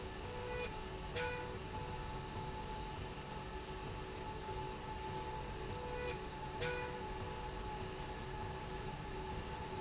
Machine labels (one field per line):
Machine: slide rail